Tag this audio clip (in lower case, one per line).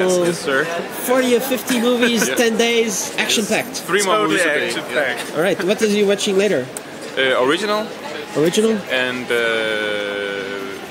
speech